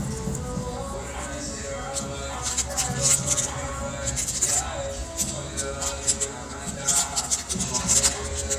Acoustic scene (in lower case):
restaurant